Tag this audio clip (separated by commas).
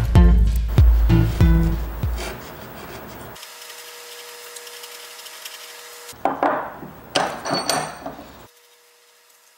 Filing (rasp), Wood, Rub